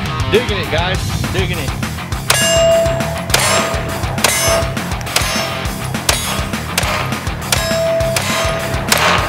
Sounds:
clang

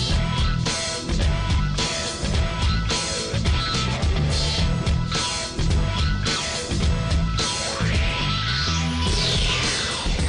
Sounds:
music

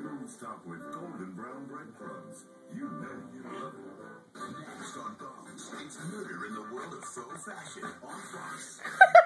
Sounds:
music
speech

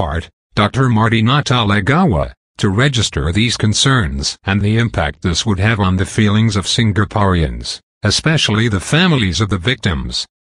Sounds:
speech

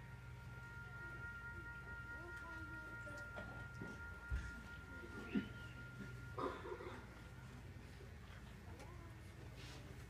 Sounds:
inside a small room
music

